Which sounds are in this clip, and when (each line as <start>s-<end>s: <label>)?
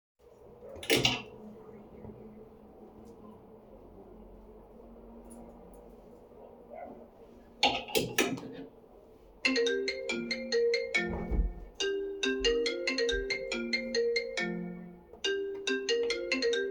0.8s-1.3s: wardrobe or drawer
9.4s-16.7s: bell ringing